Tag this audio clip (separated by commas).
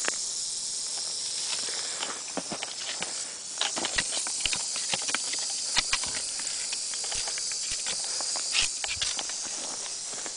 Hiss, Snake